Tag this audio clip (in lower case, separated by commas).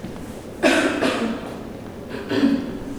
cough, respiratory sounds